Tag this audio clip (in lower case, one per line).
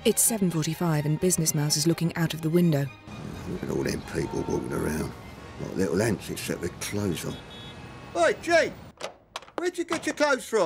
music
speech